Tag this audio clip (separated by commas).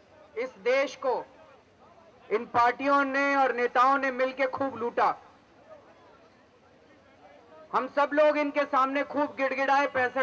monologue, man speaking, Speech